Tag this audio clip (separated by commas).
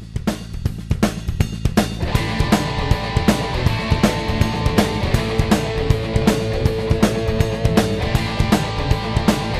Music